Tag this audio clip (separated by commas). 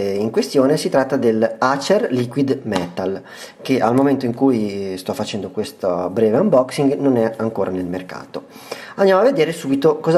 Speech